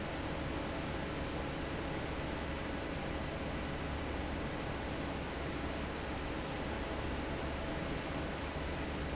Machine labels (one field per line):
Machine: fan